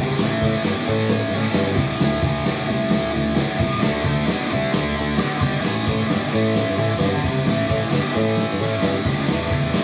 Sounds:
strum, musical instrument, guitar, plucked string instrument, music, electric guitar

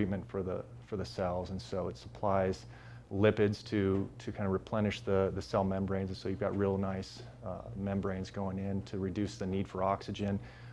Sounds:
speech

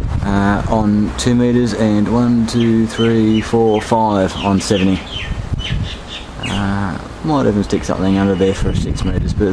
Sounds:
tweet, bird, speech

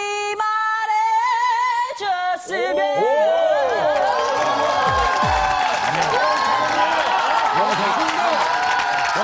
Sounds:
speech, music, female singing

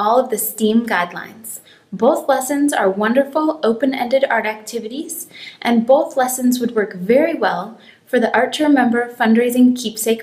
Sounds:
speech

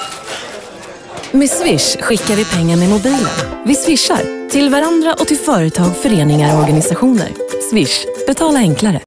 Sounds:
music, speech

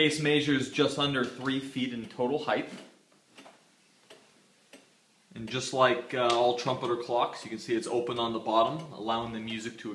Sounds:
tick-tock, speech

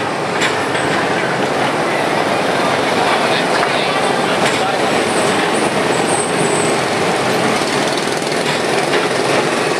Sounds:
train wheels squealing, train, rail transport, speech

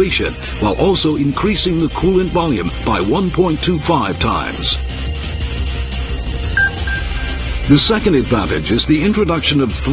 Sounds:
speech, music

